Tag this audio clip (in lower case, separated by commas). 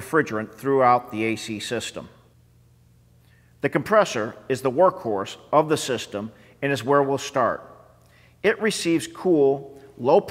speech